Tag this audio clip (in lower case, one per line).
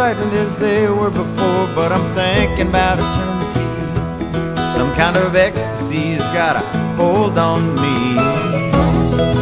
music